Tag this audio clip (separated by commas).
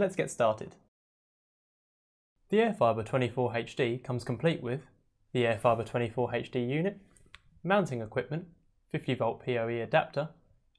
Speech